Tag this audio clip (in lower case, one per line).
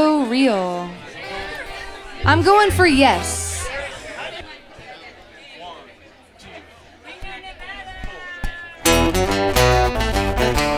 music
speech